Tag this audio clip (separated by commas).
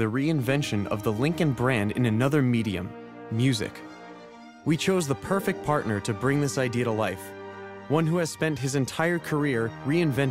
Speech, Music